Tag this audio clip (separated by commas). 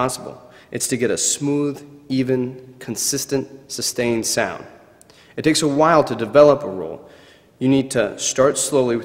Speech